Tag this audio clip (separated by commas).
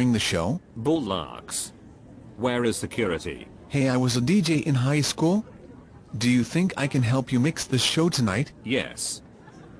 Speech